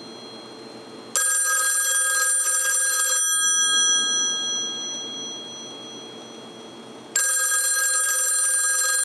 A telephone rings